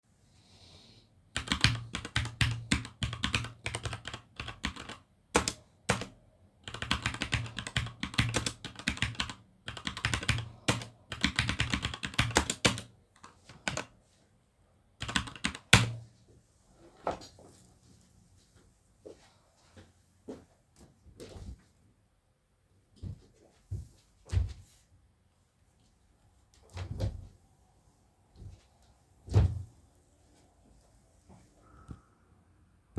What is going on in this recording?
I typed on the keyboard. Then I walked to the wardrobe and opened and closed multiple wardrobes.